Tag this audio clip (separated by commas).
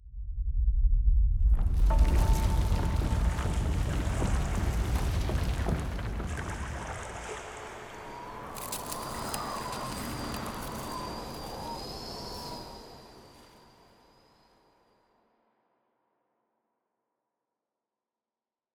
Wind